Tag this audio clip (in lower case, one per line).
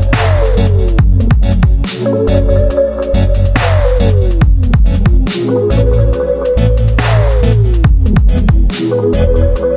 music